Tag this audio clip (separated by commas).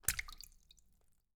Liquid, Splash